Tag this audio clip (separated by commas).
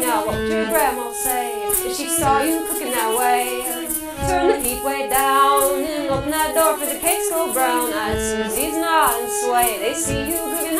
Saxophone, Music